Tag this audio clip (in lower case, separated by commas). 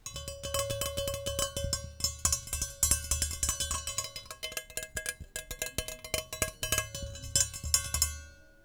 tap